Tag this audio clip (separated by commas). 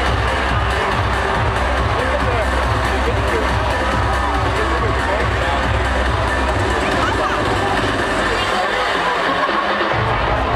Music, Speech